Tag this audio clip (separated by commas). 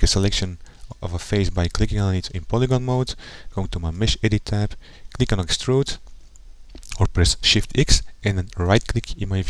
Speech